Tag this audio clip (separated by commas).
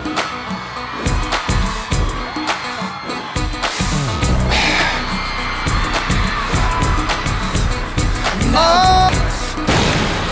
Music